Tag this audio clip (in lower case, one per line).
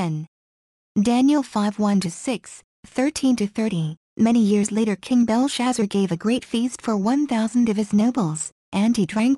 speech